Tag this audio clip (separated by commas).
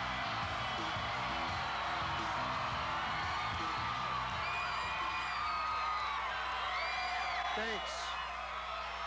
Music, Speech